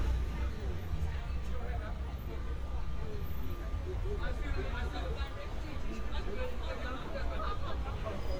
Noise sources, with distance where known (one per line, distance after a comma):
person or small group talking